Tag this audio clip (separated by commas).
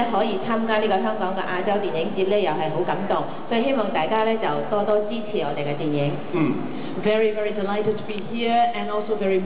Speech